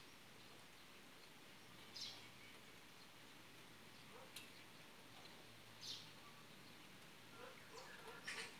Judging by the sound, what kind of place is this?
park